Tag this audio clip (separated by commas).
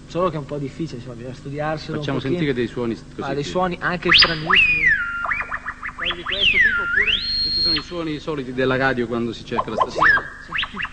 Speech